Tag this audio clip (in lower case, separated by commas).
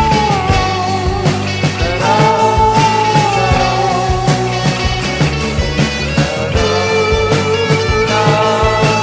psychedelic rock, music